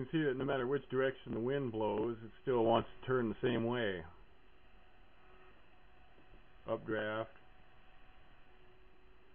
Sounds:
speech

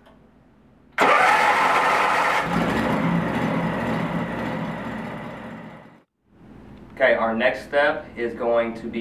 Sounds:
speech, heavy engine (low frequency)

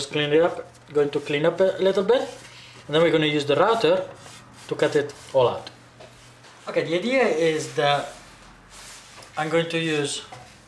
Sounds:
inside a small room, speech

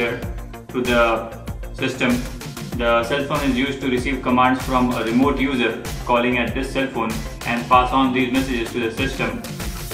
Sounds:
music

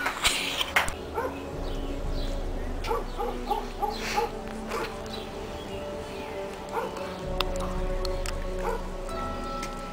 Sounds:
outside, urban or man-made, inside a small room, music

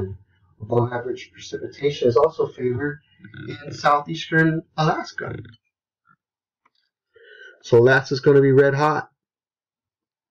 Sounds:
speech

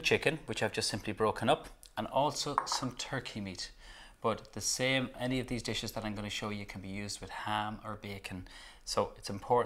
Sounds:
speech

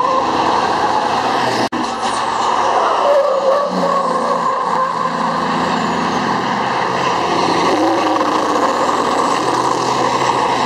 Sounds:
skidding, vehicle, truck

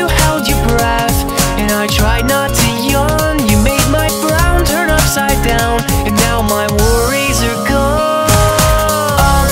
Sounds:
music

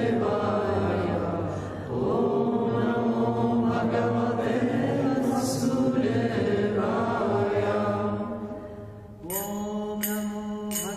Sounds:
chant, mantra, music

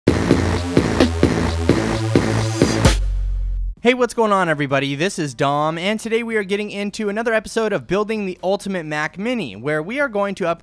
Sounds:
sampler

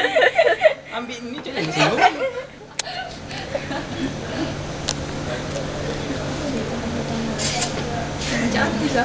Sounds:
speech

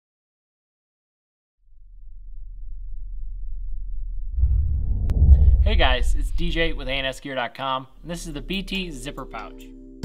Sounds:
speech

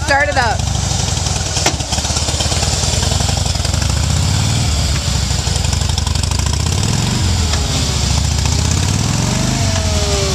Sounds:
speech

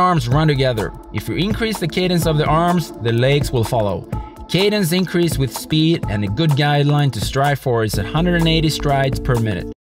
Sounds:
music, speech

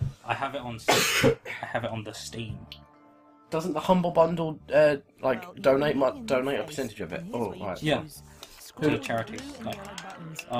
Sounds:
speech

